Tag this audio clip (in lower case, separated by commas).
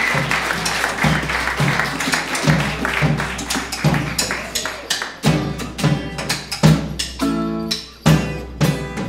music, clapping